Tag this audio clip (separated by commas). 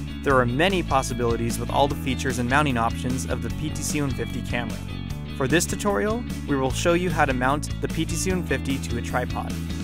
Speech, Music